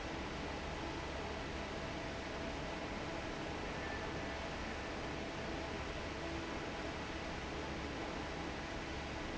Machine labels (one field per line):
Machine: fan